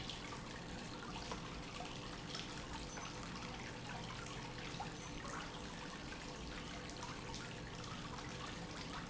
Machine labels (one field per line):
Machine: pump